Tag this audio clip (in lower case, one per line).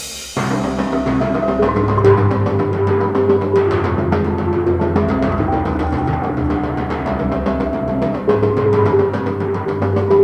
playing tympani